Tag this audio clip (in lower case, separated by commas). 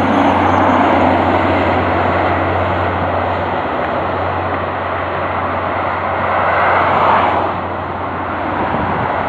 truck, vehicle, car